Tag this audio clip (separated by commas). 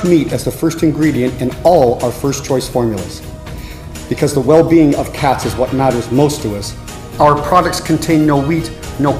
Speech, Music